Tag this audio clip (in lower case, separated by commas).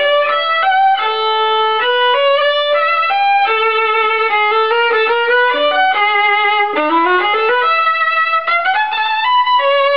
violin, music, musical instrument